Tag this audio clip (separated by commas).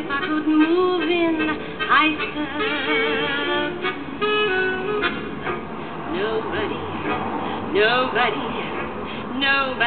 Music, Female singing